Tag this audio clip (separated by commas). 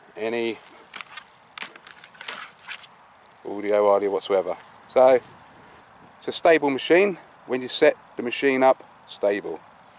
Speech